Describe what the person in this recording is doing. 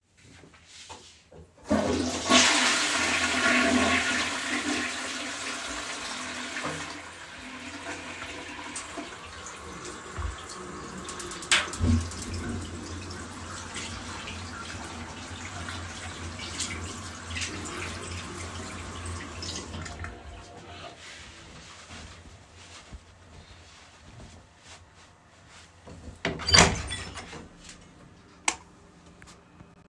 I flushed the toilet, then I turned on the water and washed my hands. After washing my hands, I dried them with a towel. Finally, I opened the toilet door then turned off the light.